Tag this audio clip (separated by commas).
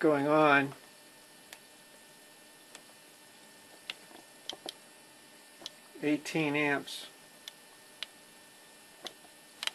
Speech